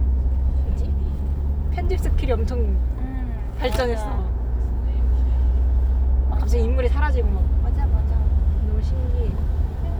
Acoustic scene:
car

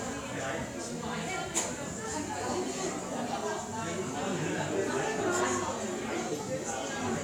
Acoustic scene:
cafe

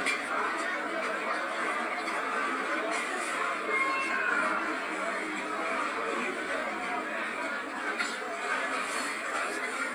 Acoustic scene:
restaurant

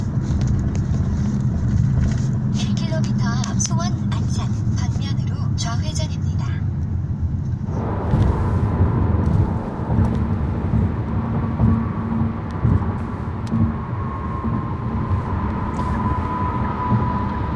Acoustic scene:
car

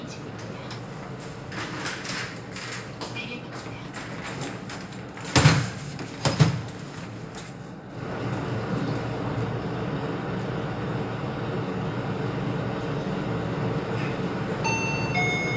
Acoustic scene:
elevator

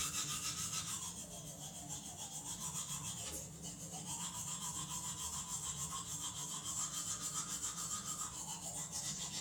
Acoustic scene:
restroom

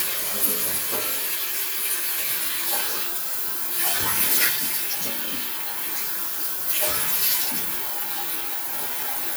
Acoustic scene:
restroom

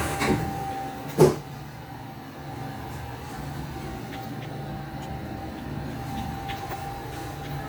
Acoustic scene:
elevator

